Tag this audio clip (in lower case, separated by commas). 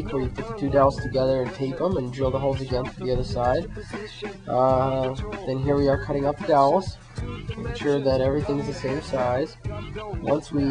music, speech